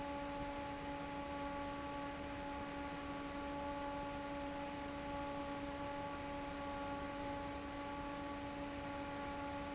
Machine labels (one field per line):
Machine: fan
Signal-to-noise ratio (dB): 6 dB